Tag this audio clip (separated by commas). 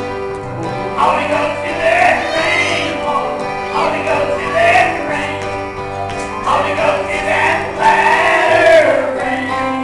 Music